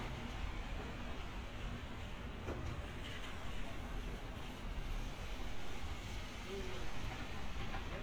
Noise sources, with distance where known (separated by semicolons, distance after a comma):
background noise